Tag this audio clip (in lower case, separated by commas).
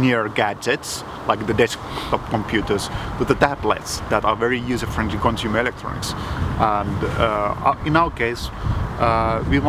speech